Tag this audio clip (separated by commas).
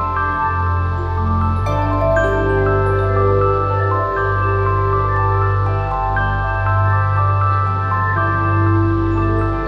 Music, Ambient music